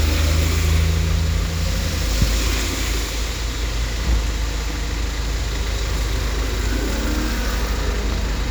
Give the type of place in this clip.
street